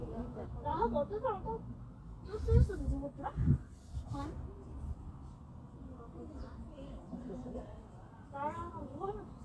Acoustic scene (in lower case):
park